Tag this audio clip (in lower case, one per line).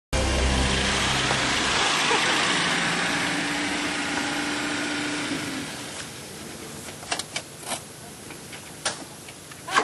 car
outside, rural or natural
vehicle